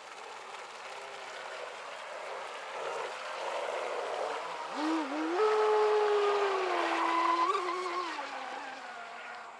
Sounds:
speedboat

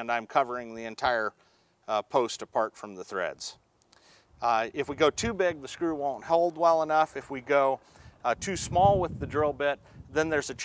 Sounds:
speech

